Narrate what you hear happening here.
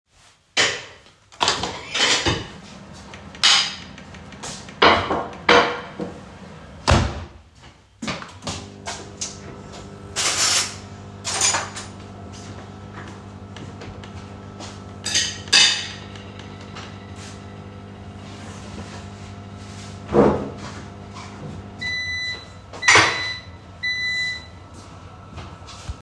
The recorder remains static in the kitchen. A plate and cutlery are moved on the counter, then the microwave door is opened and closed and the microwave operates briefly. Dish handling continues for a moment after the microwave action.